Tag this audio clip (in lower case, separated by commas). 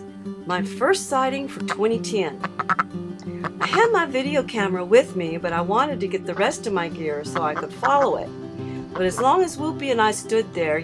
speech, music